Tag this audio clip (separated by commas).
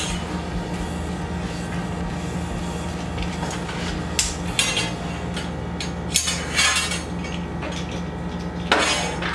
inside a small room